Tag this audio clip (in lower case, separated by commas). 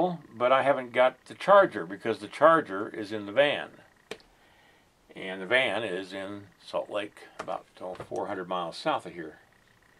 speech, inside a small room